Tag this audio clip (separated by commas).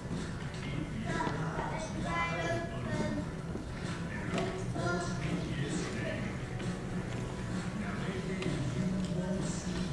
Music, Speech, inside a large room or hall